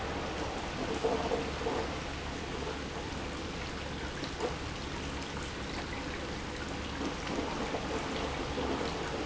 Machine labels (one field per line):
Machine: pump